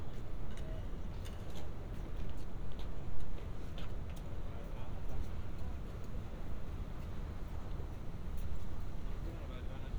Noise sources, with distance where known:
person or small group talking, far

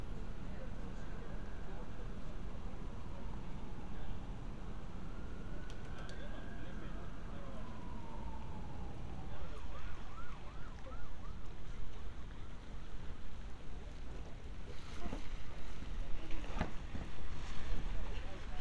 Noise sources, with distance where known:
siren, far
person or small group talking, far

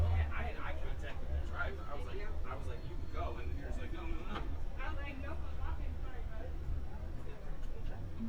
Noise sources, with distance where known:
person or small group talking, near

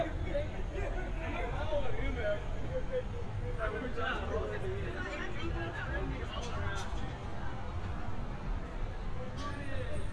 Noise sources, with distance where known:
person or small group talking, near

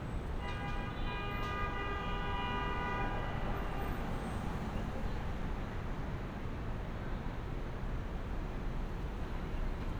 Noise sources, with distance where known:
car horn, near

